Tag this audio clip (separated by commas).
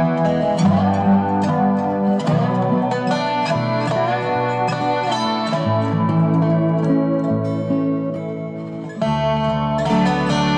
Music, Lullaby